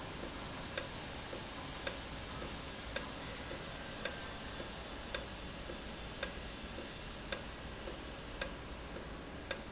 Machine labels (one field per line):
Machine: valve